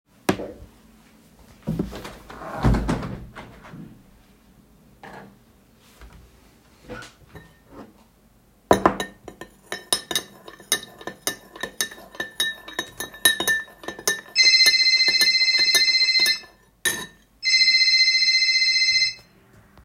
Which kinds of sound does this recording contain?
window, cutlery and dishes, phone ringing